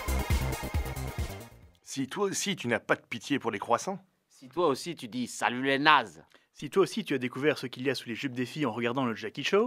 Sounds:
music, speech

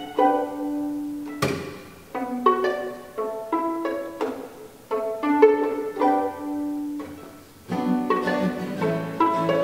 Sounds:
music, musical instrument, pizzicato

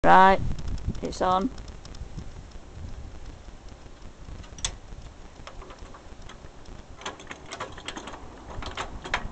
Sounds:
speech, tools

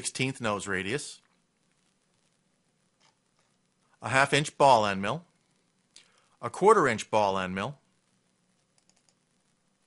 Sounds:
inside a small room, speech

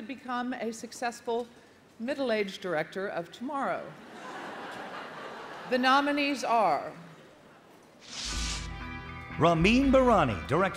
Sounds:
speech, music

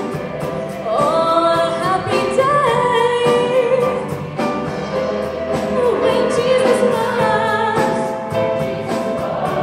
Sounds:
music, choir

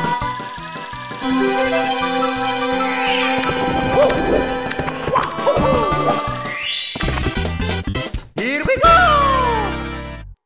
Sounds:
speech, music

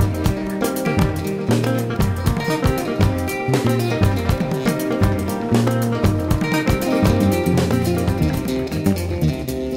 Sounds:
music

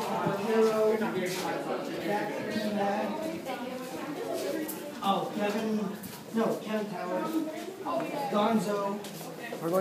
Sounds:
speech

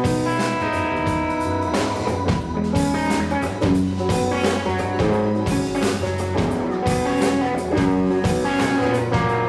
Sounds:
music

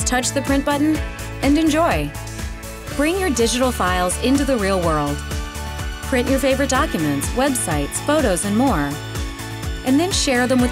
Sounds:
speech, music

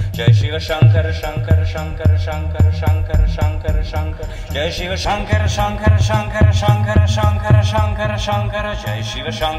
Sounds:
music, mantra

